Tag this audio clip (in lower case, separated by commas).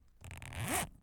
domestic sounds, zipper (clothing)